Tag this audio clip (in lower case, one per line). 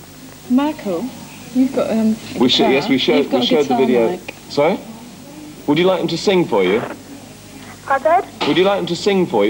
speech